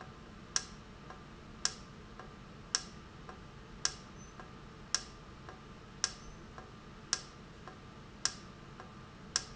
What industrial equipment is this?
valve